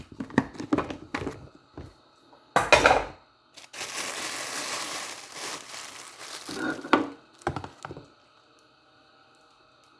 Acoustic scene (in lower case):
kitchen